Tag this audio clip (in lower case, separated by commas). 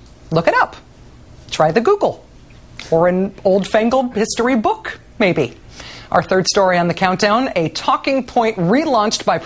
speech